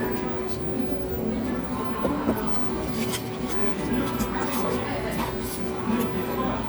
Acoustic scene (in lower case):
cafe